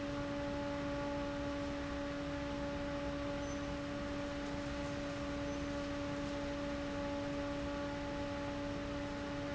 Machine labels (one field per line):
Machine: fan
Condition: abnormal